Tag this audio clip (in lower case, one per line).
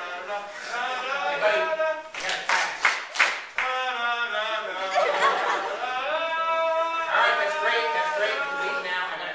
speech